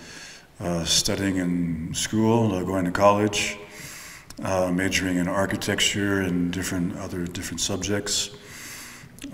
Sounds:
Speech

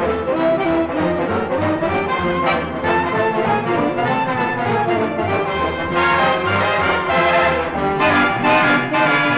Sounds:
Music, Swing music

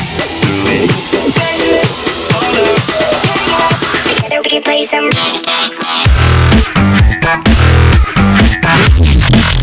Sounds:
Music

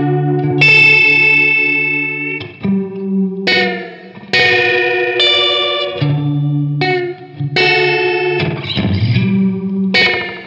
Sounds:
Guitar, inside a small room, Effects unit, Musical instrument, Music

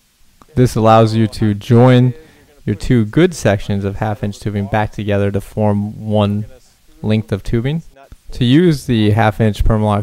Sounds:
Speech

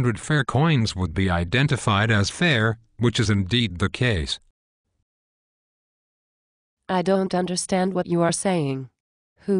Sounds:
inside a small room, Speech

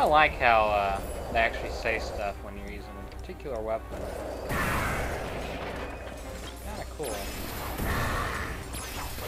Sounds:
Music, Speech

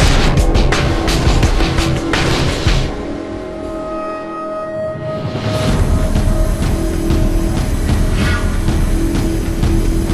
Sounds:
Music

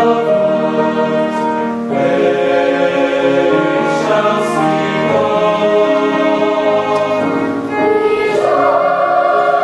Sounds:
Choir, Music

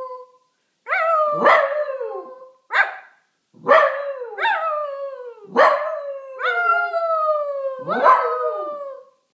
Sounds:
Yip

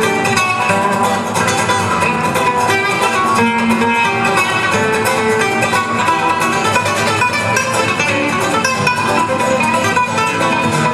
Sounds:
Strum, Plucked string instrument, Acoustic guitar, Guitar, Music, Musical instrument

